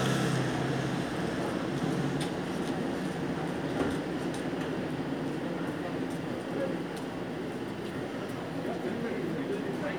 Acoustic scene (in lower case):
street